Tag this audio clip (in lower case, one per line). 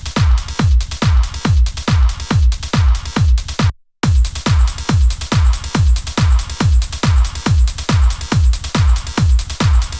music
techno